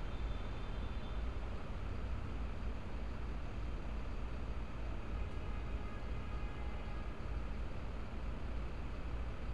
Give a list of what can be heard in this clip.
large-sounding engine, car horn